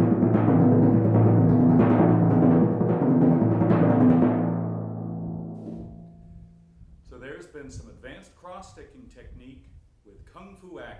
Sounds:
playing timpani

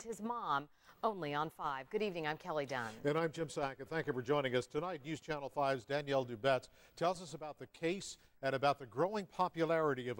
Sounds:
Speech

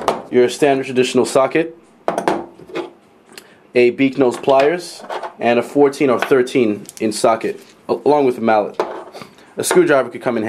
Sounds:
Speech

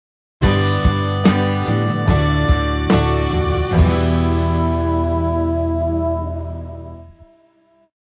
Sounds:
Music

